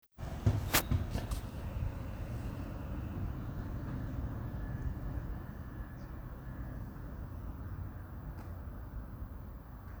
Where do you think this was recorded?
in a residential area